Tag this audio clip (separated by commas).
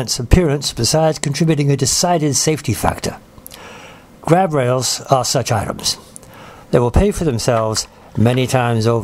Speech